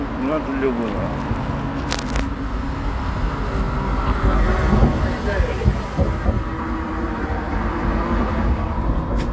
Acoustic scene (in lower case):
street